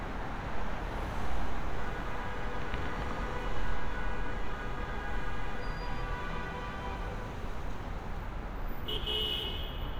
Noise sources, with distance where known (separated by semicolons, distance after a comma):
car horn, near